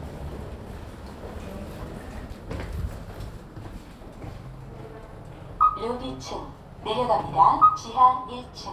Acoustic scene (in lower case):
elevator